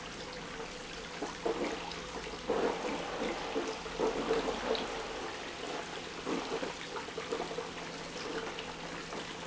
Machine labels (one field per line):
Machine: pump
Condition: abnormal